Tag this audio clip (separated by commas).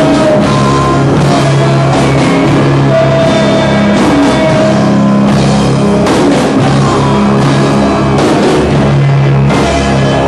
Music, Drum kit, Musical instrument, Rock music, Percussion